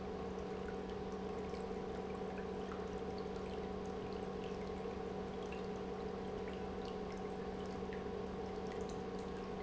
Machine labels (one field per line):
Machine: pump